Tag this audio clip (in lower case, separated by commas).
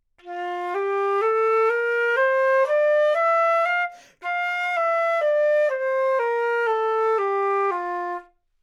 music, wind instrument, musical instrument